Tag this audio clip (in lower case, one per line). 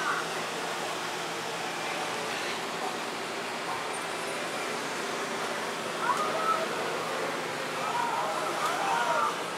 inside a small room
speech